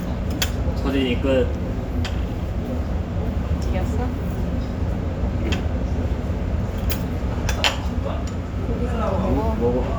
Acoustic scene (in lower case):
restaurant